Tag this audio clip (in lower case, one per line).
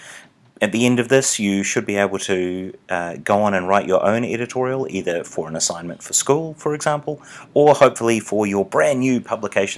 speech